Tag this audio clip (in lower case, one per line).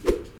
swish